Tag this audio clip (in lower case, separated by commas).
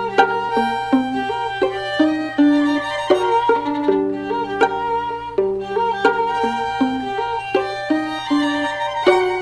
violin, bowed string instrument